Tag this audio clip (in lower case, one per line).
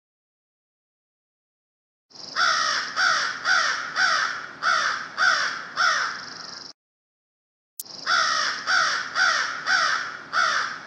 crow cawing